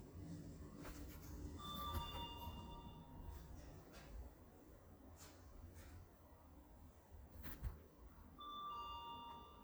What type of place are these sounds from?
elevator